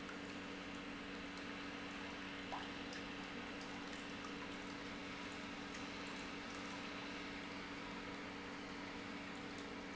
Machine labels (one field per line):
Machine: pump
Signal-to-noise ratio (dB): 6 dB